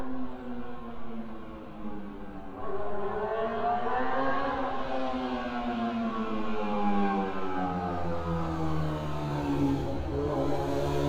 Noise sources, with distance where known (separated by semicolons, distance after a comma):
medium-sounding engine, near